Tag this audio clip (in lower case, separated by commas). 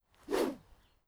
whoosh